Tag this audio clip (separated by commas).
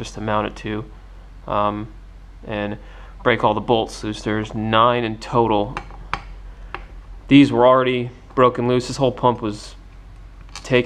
Speech